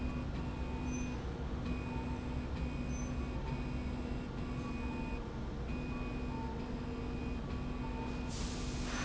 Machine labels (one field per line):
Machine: slide rail